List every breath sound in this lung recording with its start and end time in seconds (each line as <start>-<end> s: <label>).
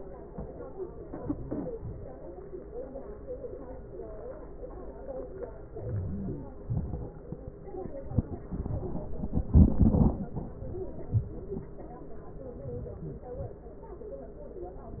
5.87-6.46 s: inhalation
6.69-7.10 s: exhalation
12.63-13.26 s: inhalation
13.35-13.75 s: exhalation